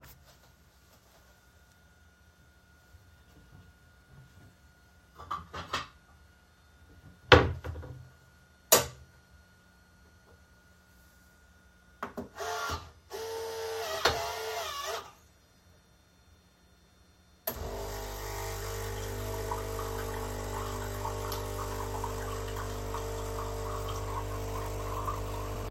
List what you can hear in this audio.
wardrobe or drawer, cutlery and dishes, coffee machine